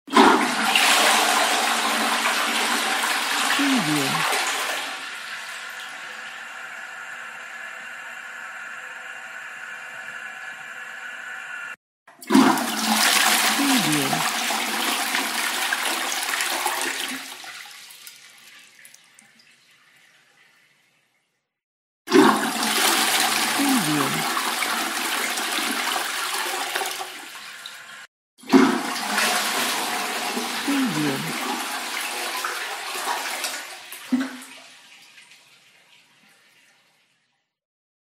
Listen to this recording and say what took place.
Toilet flushed and sink water running.